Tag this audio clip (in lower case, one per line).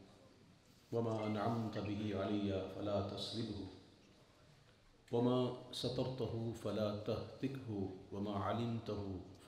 male speech
speech
narration